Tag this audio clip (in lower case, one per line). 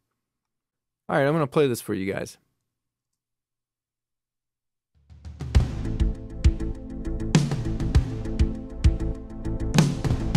speech
music